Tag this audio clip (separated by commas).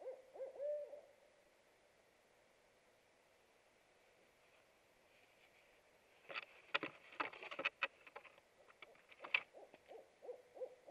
owl hooting